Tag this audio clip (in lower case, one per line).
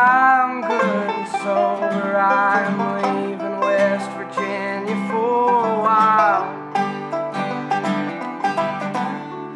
plucked string instrument
acoustic guitar
banjo
musical instrument
country
guitar
music